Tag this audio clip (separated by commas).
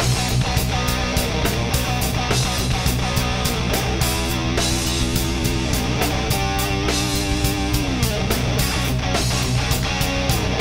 Acoustic guitar, Music, Musical instrument, Plucked string instrument, Guitar